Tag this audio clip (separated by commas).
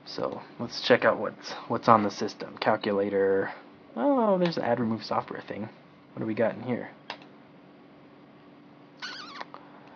Speech, inside a small room